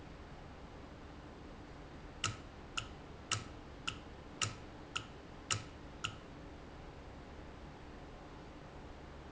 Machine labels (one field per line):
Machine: valve